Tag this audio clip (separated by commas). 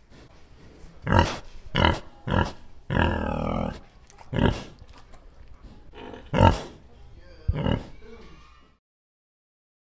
pig oinking